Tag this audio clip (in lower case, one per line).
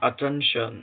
human voice
man speaking
speech